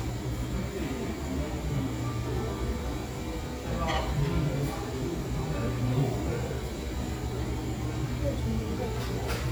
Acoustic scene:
cafe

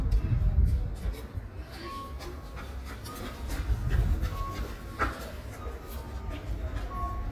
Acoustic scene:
residential area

